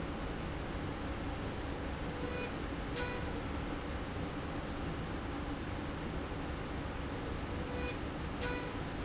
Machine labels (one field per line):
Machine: slide rail